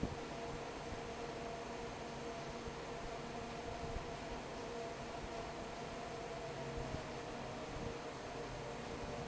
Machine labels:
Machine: fan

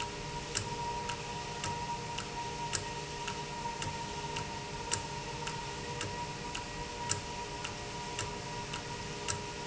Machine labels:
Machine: valve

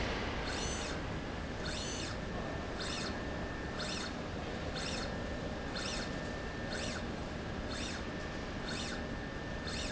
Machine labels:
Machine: slide rail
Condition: normal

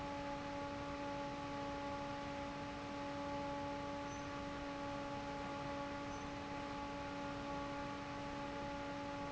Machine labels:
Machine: fan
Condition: normal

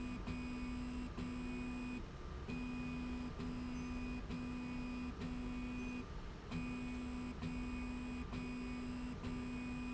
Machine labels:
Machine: slide rail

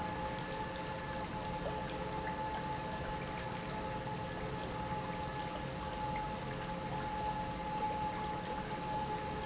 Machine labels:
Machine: pump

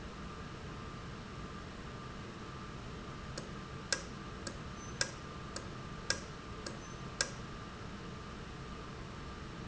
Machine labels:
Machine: valve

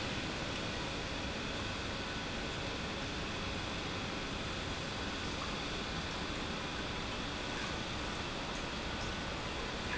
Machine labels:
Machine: pump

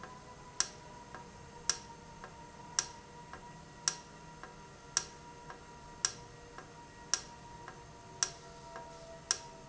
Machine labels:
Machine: valve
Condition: normal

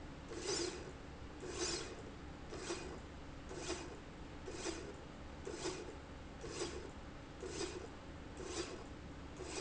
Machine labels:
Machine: slide rail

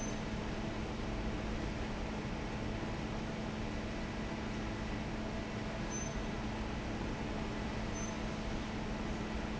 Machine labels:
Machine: fan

